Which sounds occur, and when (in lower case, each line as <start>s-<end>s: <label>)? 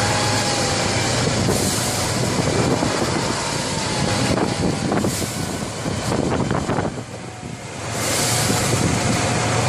0.0s-3.3s: vroom
0.0s-9.6s: truck
0.0s-9.6s: wind
1.1s-1.7s: wind noise (microphone)
2.1s-3.4s: wind noise (microphone)
3.7s-5.7s: wind noise (microphone)
5.8s-7.1s: wind noise (microphone)
7.4s-7.7s: wind noise (microphone)
7.9s-9.6s: vroom
8.1s-9.1s: wind noise (microphone)